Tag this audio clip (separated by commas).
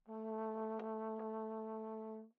Brass instrument, Musical instrument, Music